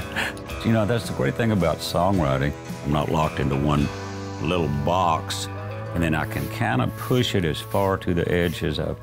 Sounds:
Music, Speech

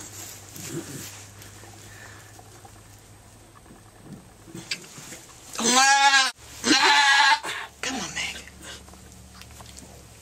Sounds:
Bleat, Sheep, Speech

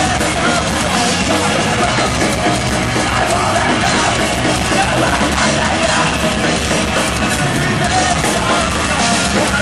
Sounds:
Music

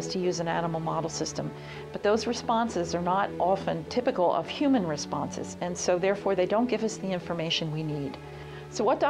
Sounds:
Speech, Music

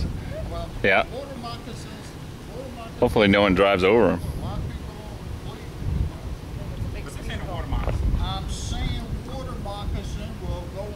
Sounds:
Speech

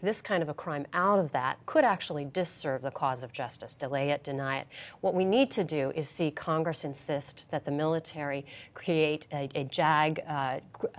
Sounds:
Speech, woman speaking

